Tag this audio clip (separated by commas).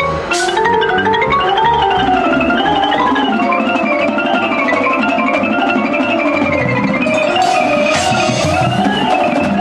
Independent music, Music